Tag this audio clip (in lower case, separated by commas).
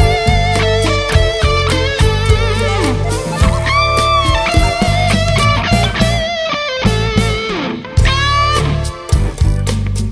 music, musical instrument, guitar, plucked string instrument